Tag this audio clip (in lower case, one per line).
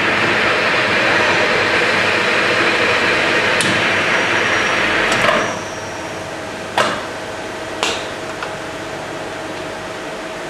lathe spinning